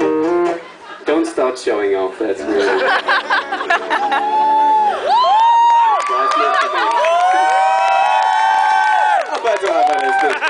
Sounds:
music, speech

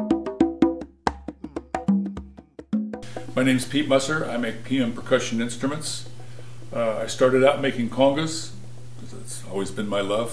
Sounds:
speech, music, wood block

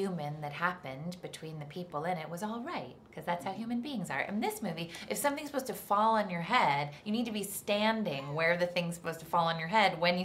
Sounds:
inside a small room, speech

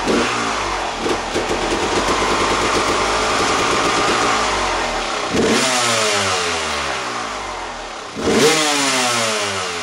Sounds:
vehicle, engine, medium engine (mid frequency), vroom

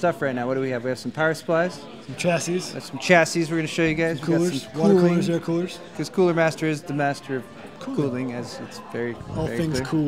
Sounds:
speech

